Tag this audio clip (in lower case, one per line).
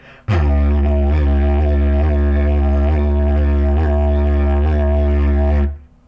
musical instrument
music